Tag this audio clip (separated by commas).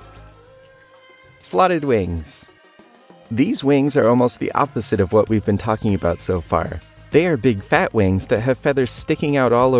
bird wings flapping